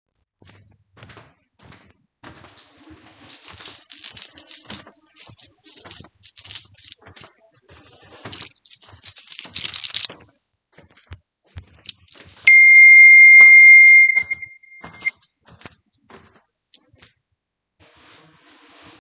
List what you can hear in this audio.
footsteps, keys, phone ringing